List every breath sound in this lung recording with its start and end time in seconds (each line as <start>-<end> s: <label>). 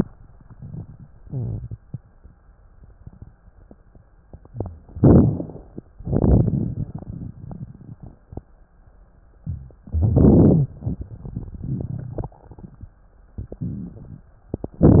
4.90-5.87 s: inhalation
5.92-8.27 s: exhalation
5.92-8.27 s: crackles
9.74-10.75 s: inhalation
10.74-12.90 s: exhalation
10.74-12.90 s: crackles